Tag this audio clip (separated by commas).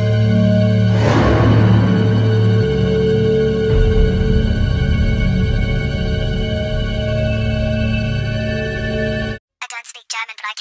Scary music, Speech, Music